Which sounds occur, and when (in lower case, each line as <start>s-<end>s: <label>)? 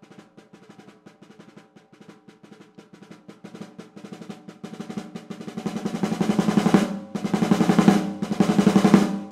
0.0s-9.3s: music